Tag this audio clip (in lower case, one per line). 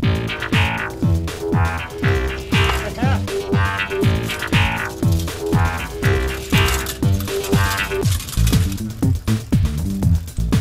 music
speech